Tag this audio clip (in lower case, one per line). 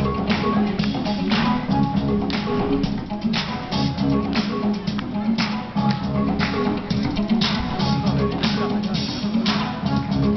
music